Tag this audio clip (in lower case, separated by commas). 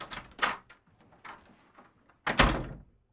door, domestic sounds, slam